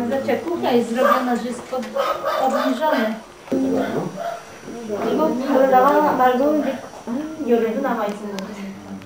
People talking with a dog barking in the back